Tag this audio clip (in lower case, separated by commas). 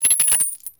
home sounds, coin (dropping)